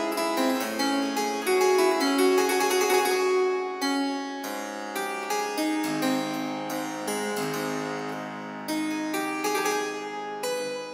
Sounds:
harpsichord
keyboard (musical)
playing harpsichord

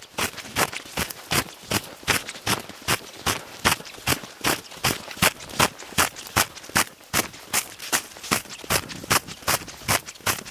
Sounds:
footsteps on snow

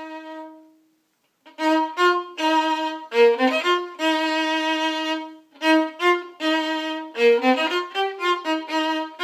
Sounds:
fiddle
musical instrument
music

